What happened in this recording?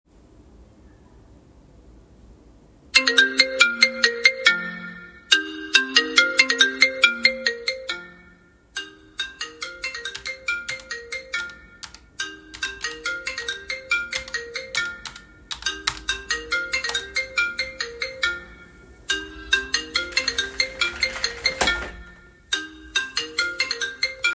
I was sitting at my desk with my phone placed nearby. My phone started ringing and while it was still ringing I continued typing on my laptop keyboard. I then picked up the call, stood up, and closed the open window next to the desk.